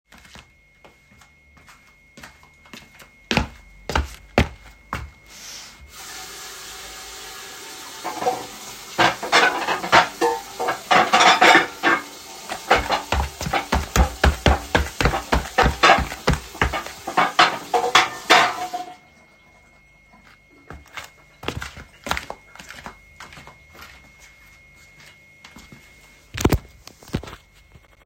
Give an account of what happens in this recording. I walked into the kitchen and headed straight to the sink. I turned on the tap and started washing the dishes, clinking the cutlery as I cleaned it. Once I was done, I turned off the water and dried my hands.